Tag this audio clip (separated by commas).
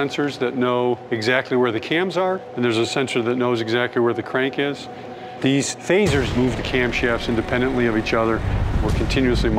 Music, Speech